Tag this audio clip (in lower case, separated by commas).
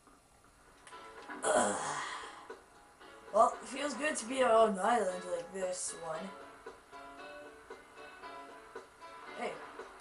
speech, music